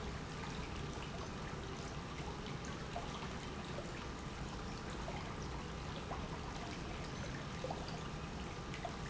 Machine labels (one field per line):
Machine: pump